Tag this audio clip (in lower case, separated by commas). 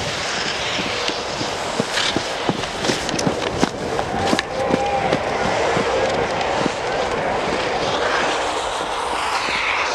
skiing